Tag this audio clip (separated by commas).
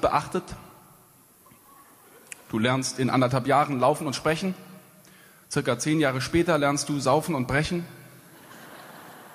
Speech